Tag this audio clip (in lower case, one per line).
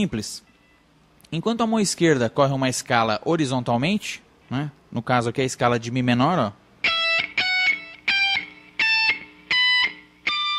music
electric guitar
speech
musical instrument
plucked string instrument
guitar